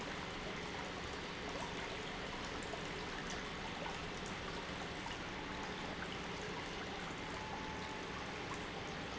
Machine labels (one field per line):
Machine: pump